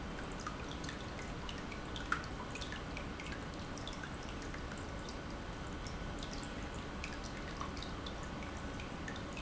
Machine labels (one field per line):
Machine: pump